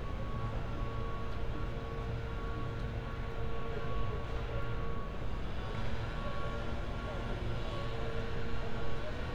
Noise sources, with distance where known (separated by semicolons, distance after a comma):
chainsaw, far; reverse beeper, far